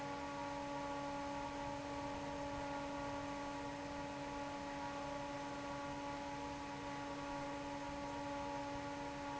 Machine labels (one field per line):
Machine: fan